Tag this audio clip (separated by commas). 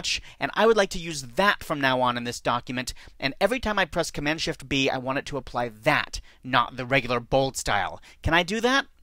Speech